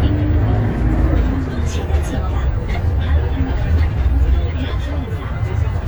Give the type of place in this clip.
bus